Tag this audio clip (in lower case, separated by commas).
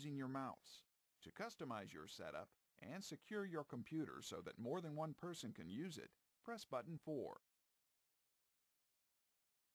speech